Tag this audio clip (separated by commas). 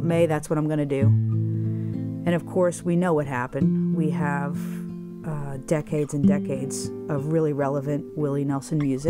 Plucked string instrument, Speech, Guitar, Music, Musical instrument, Acoustic guitar